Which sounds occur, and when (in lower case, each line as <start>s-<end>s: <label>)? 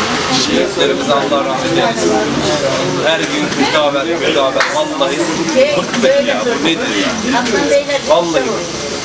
0.0s-9.0s: hubbub
0.0s-9.0s: roadway noise
0.3s-5.3s: man speaking
3.4s-3.6s: generic impact sounds
4.5s-4.6s: tick
5.6s-7.2s: man speaking
5.8s-6.1s: generic impact sounds
7.4s-7.5s: tick
8.0s-8.6s: man speaking